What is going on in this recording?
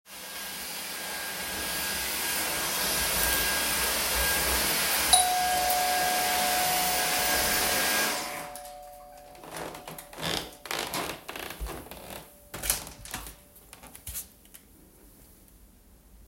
The doorbell rang while I was vacuuming, so I turned the vacuum off to open the door for a guest.